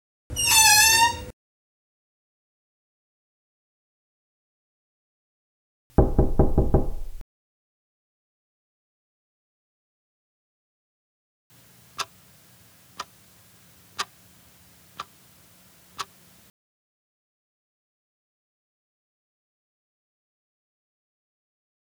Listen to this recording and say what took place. Phone carried from hallway into bedroom. Wardrobe door opened and drawer pulled out, keychain grabbed from shelf, walked back out to front door.